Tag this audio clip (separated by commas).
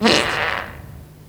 Fart